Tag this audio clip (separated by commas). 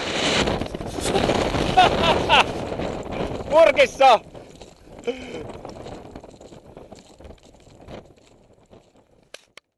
Speech